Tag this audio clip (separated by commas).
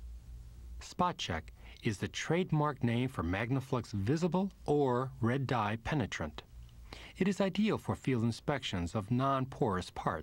Speech